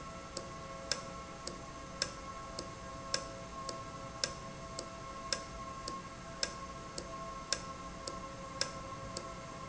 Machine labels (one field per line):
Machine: valve